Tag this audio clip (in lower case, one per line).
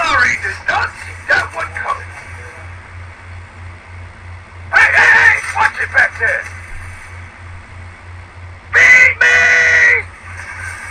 speech